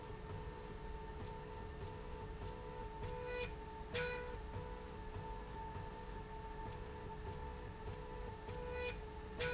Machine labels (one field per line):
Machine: slide rail